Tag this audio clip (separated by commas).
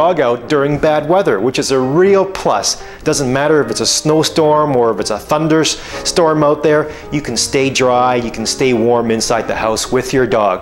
Music, Speech